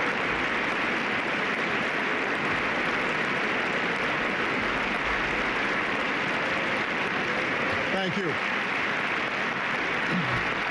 A crowd is clapping and a man speaks